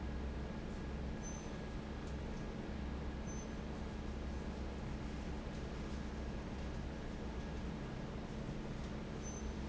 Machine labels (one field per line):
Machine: fan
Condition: normal